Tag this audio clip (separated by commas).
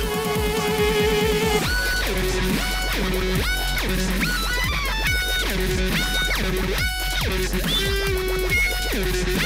Music, fiddle, Musical instrument